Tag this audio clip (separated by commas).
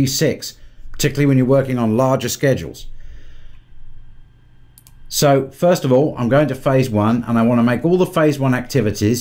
Speech